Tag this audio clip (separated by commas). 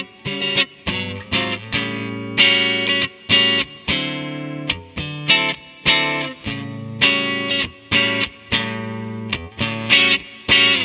Music, Harmonic